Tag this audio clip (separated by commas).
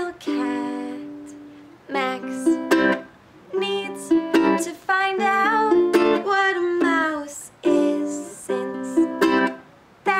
Music